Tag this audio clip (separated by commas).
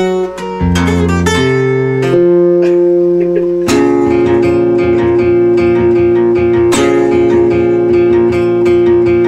Plucked string instrument, Acoustic guitar, Music, Musical instrument, Strum, Guitar